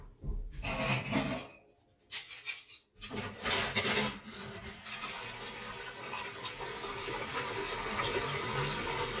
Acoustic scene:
kitchen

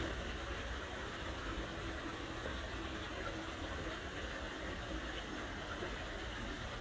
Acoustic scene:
park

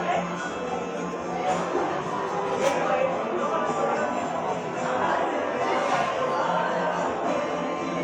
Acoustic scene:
cafe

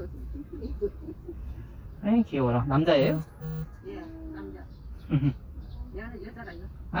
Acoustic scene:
park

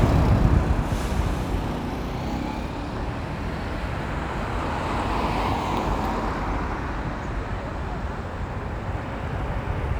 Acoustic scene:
street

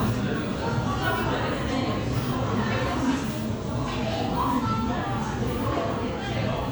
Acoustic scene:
crowded indoor space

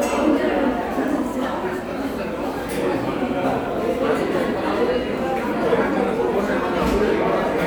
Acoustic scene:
crowded indoor space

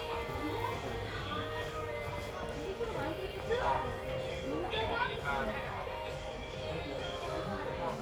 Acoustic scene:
crowded indoor space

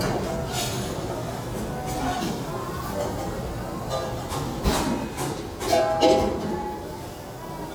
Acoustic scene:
restaurant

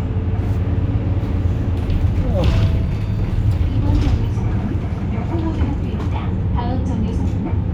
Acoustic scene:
bus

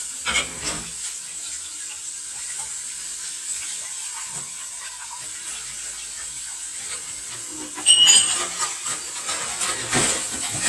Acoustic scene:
kitchen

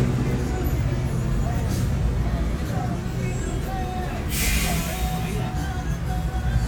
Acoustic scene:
street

